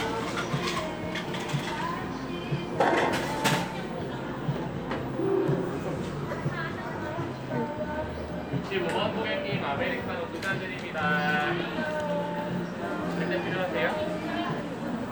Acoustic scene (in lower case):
cafe